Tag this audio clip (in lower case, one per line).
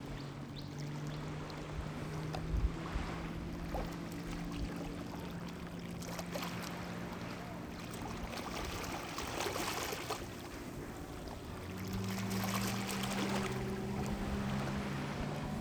ocean
waves
water